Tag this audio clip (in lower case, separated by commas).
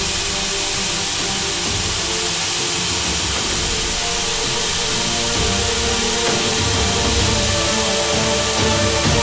aircraft engine, engine, vehicle, aircraft